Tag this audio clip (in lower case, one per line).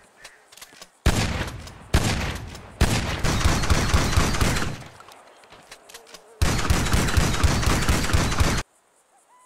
firing muskets